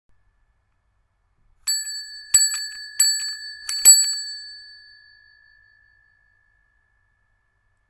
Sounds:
bell

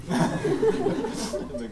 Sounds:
human voice
laughter

